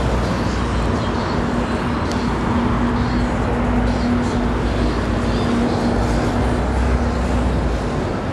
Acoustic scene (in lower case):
street